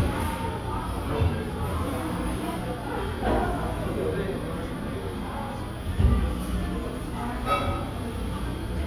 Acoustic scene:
cafe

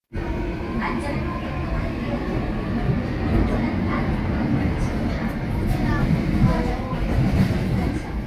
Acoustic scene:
subway train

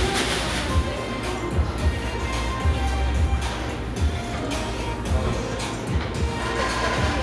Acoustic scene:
cafe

